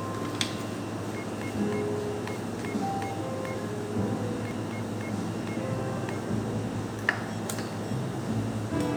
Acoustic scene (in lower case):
cafe